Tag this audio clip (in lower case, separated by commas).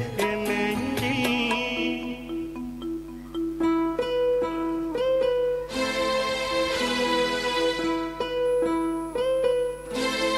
pizzicato